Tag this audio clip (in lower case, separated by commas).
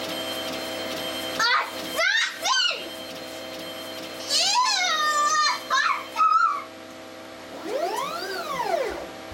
speech